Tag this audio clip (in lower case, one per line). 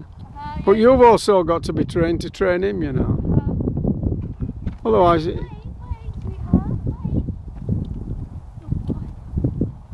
speech
animal
horse
clip-clop